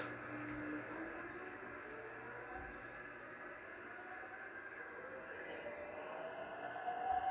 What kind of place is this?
subway train